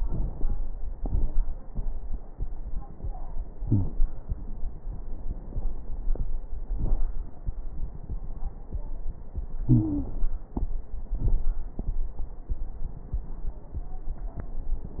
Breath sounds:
3.63-3.92 s: wheeze
9.70-10.12 s: wheeze

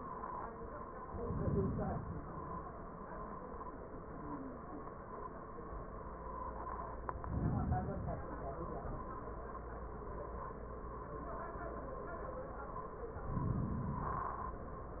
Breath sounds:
0.97-2.38 s: inhalation
7.08-8.48 s: inhalation
13.18-14.59 s: inhalation

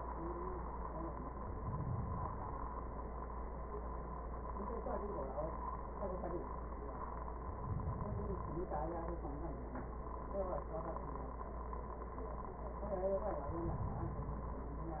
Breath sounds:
1.35-2.85 s: inhalation
7.28-8.78 s: inhalation
13.24-14.74 s: inhalation

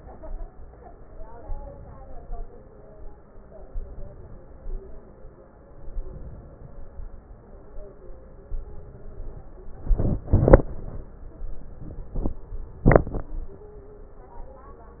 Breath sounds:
3.67-4.41 s: inhalation
5.97-6.71 s: inhalation

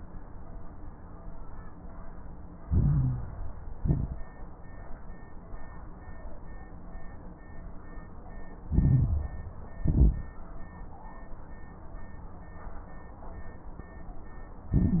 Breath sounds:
2.64-3.49 s: inhalation
2.64-3.49 s: crackles
3.74-4.28 s: exhalation
3.74-4.28 s: crackles
8.68-9.54 s: inhalation
8.68-9.54 s: crackles
9.82-10.36 s: exhalation
9.82-10.36 s: crackles
14.73-15.00 s: inhalation
14.73-15.00 s: crackles

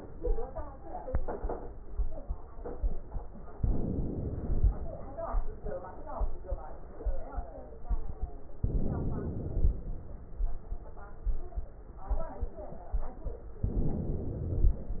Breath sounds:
3.56-4.88 s: inhalation
8.64-9.96 s: inhalation
13.65-14.97 s: inhalation

